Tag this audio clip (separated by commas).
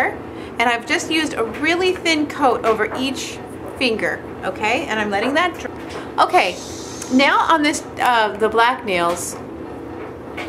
Speech